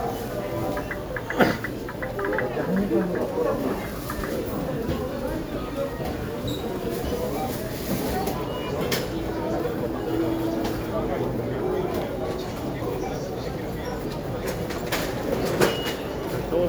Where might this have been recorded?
in a crowded indoor space